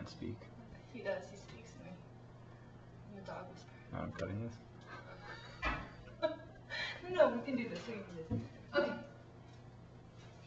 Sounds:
Speech

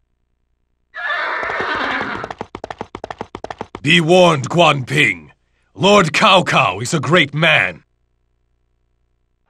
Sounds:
Speech

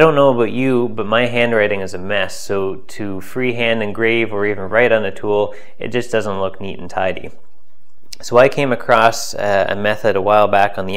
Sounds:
Speech

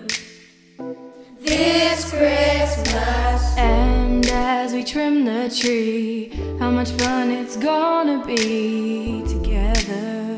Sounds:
Music, Choir

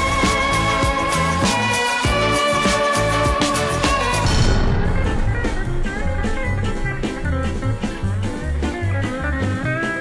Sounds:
Music

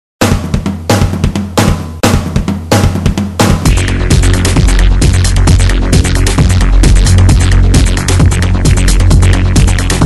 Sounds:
Drum, Drum kit, Sampler, Music, Drum roll

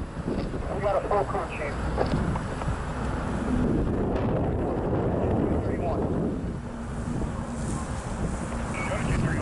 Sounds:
Speech

